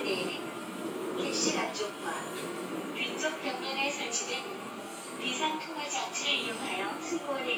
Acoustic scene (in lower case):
subway train